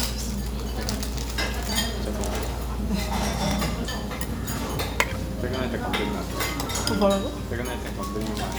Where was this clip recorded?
in a restaurant